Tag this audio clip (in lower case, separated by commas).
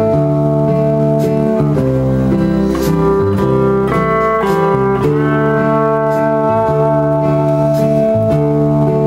slide guitar, music